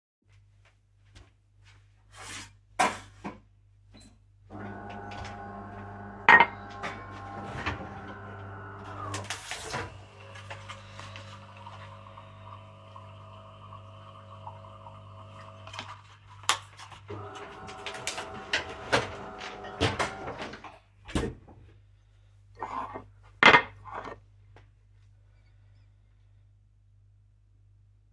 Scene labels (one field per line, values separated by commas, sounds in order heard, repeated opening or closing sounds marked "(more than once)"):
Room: kitchen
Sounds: footsteps, cutlery and dishes, coffee machine, door (more than once)